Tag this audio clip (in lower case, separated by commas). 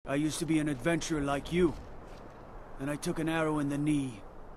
speech